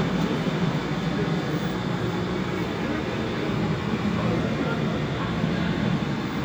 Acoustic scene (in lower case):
subway station